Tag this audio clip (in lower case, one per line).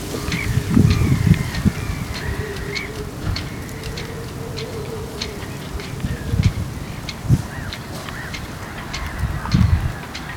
wind
vehicle
boat
water
ocean